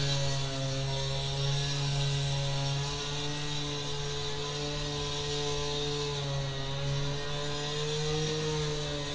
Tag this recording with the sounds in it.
small or medium rotating saw